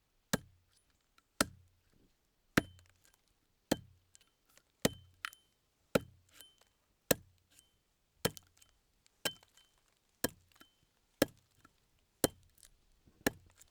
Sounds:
Wood

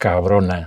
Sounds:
Speech, Male speech, Human voice

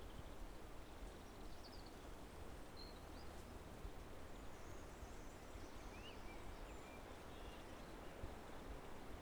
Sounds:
Bird, Wild animals, Animal

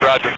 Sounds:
Speech, Human voice, Male speech

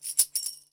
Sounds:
Musical instrument, Tambourine, Music, Percussion

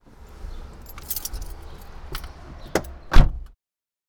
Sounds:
Motor vehicle (road), Car, Vehicle

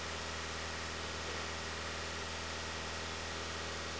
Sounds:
Motor vehicle (road), Car, Vehicle

